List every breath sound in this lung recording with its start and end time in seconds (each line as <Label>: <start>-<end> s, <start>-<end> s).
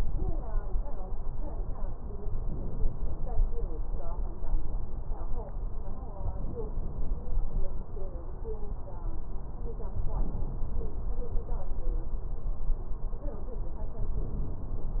Inhalation: 2.22-3.47 s, 6.20-7.45 s, 9.91-11.16 s, 13.78-15.00 s